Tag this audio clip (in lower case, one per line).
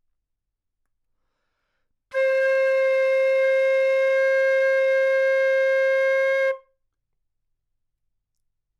wind instrument
musical instrument
music